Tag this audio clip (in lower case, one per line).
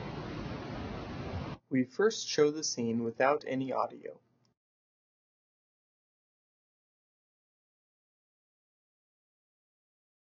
speech